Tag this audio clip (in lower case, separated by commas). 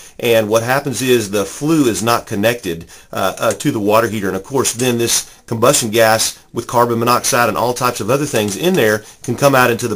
speech